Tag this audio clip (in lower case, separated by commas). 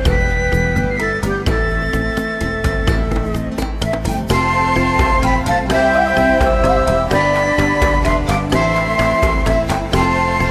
music